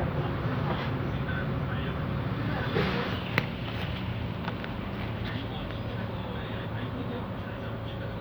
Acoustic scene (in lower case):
bus